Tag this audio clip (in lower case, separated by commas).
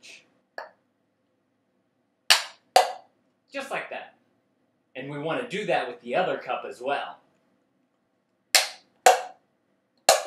speech